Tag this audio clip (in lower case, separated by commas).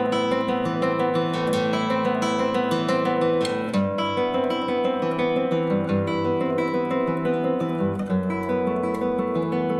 plucked string instrument, guitar, musical instrument, music, strum, acoustic guitar